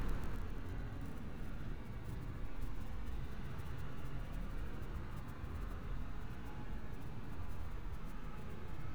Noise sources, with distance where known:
car horn

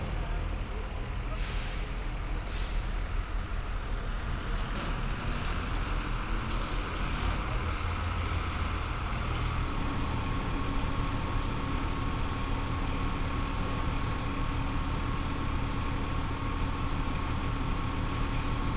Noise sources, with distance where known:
large-sounding engine, near

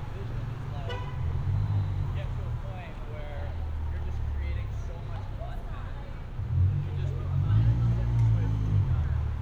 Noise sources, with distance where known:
medium-sounding engine
car horn
person or small group talking, near

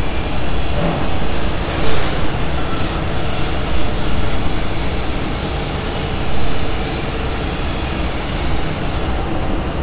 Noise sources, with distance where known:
unidentified impact machinery

